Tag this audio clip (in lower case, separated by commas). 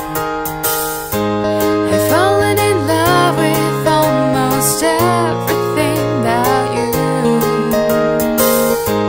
music